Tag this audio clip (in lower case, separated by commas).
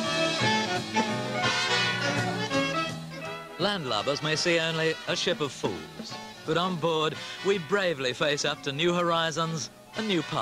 orchestra, speech, music